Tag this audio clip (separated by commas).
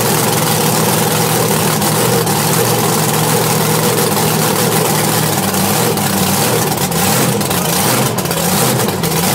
Vehicle